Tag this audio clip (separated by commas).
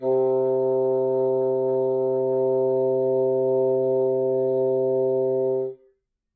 Music, woodwind instrument, Musical instrument